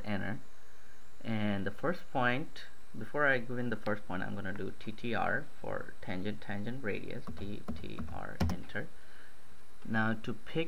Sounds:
Speech

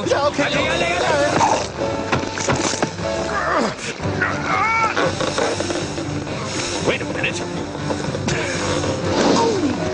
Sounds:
Music, Speech

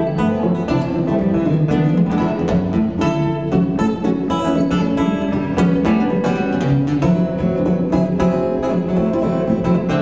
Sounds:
String section, Music, Guitar, Plucked string instrument, Musical instrument

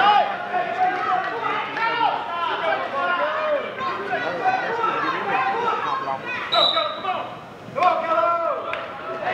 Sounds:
Speech, inside a public space

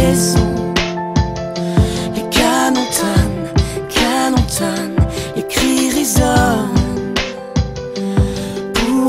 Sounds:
Music

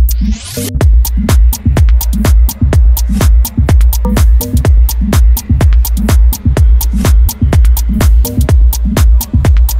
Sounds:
Music

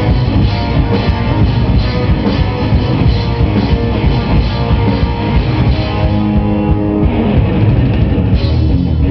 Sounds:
Cymbal, Drum kit, Drum, Rock music, Percussion, Musical instrument, Music, Bass drum, Hi-hat

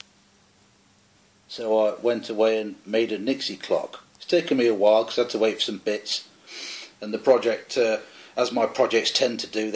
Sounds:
Speech

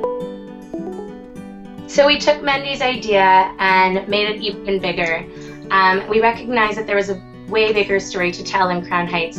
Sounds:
Music, Speech

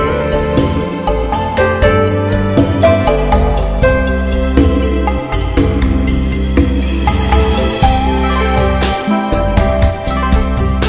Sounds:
New-age music, Music

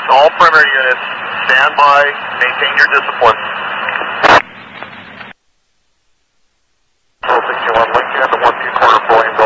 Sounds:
police radio chatter

